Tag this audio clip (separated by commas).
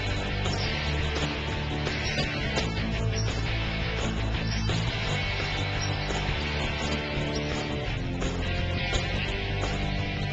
Music